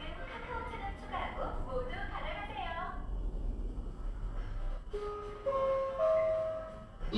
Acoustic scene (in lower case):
elevator